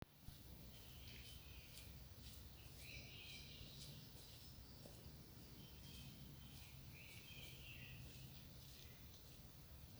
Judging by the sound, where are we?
in a park